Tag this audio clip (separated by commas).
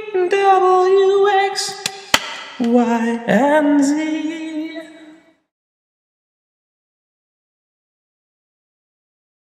Speech